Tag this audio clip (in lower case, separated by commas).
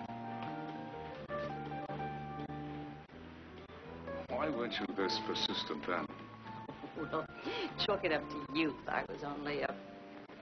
speech, music